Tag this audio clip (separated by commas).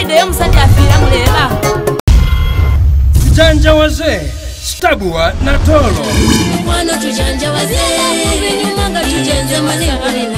Music, Dance music